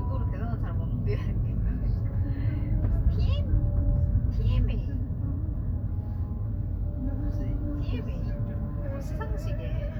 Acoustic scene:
car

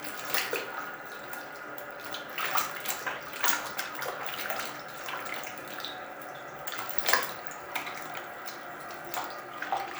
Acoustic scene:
restroom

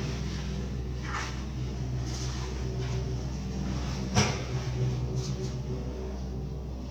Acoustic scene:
elevator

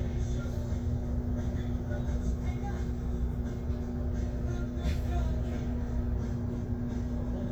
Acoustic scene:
bus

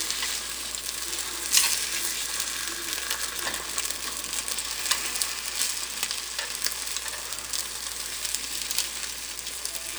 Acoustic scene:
kitchen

